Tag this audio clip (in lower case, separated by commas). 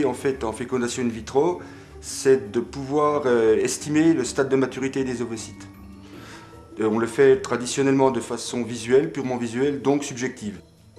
music, speech